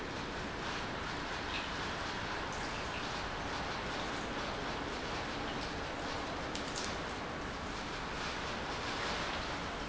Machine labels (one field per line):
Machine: pump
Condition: normal